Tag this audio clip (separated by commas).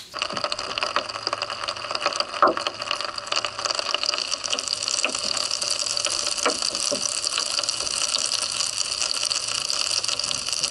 underwater bubbling